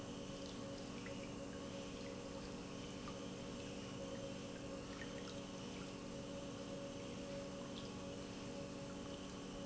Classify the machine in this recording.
pump